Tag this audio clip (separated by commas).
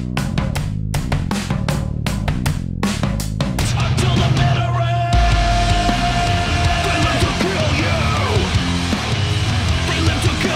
playing bass drum